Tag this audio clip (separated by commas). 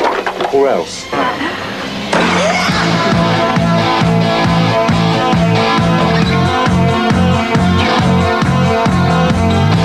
Speech, Music